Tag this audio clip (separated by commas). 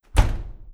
Door, home sounds, Slam